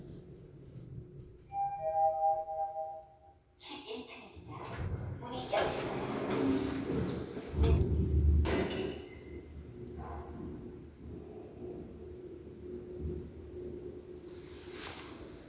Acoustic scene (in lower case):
elevator